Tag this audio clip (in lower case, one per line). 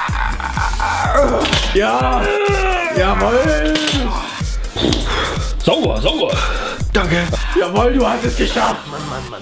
speech
music